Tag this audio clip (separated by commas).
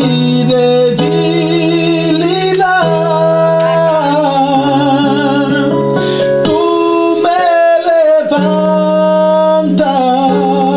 Male singing, Singing, Music, Musical instrument